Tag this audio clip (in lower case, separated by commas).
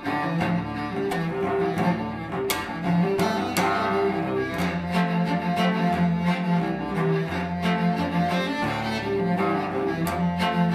bowed string instrument, cello, musical instrument, playing cello, music